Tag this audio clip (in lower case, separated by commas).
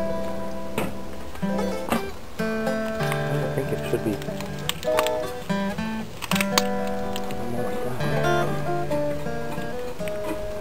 speech, music